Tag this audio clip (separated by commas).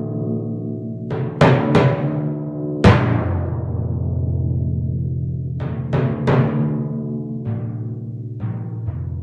playing tympani